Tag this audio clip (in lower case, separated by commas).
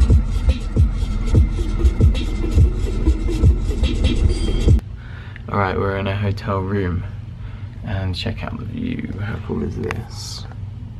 music, scratching (performance technique), speech